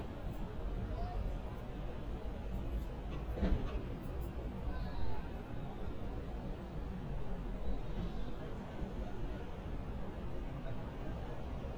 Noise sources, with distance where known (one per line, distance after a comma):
person or small group talking, far